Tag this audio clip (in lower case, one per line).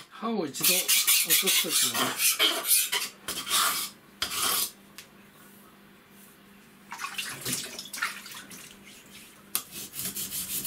sharpen knife